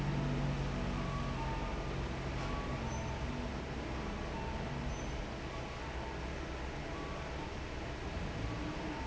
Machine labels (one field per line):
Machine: fan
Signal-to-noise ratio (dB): -6 dB